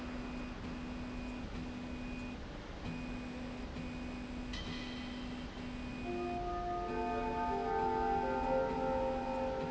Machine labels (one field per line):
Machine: slide rail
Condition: normal